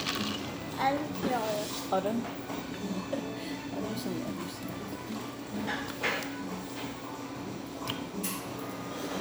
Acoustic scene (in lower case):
cafe